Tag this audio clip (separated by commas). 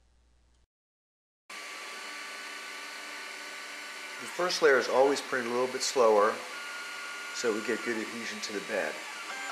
Printer, Speech